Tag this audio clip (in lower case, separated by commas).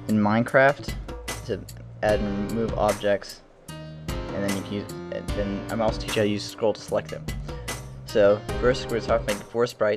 speech, music